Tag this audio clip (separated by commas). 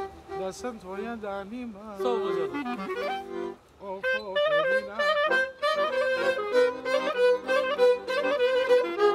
Music